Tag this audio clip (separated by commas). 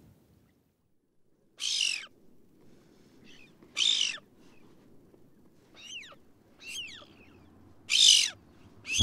Speech, Bird